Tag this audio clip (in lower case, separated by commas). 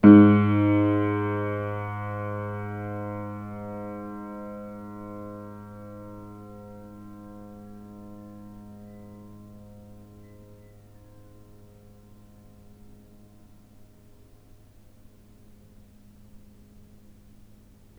keyboard (musical), musical instrument, piano, music